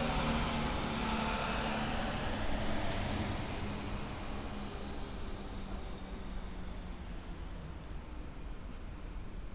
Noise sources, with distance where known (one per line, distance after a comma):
large-sounding engine